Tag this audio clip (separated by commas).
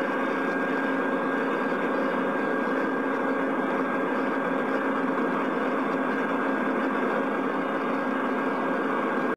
Vehicle